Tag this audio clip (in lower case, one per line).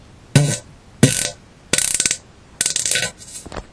fart